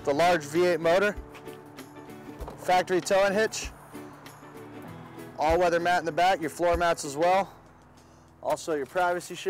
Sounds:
music, speech

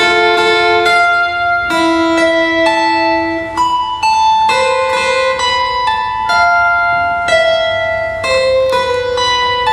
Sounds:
music, guitar

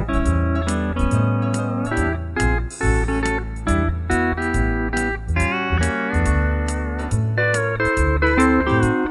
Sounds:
guitar, music

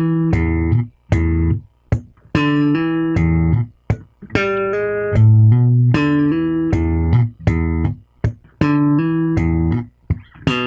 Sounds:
musical instrument, electronic tuner, guitar, electric guitar, music, plucked string instrument

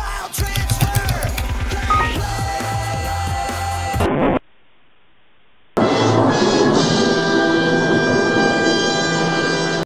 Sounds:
music

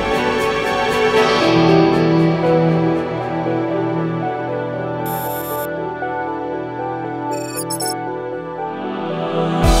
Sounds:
new-age music

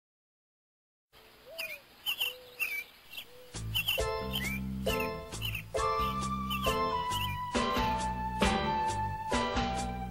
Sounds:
bird

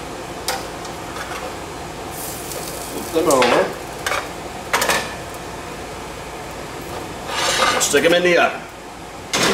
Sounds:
sizzle

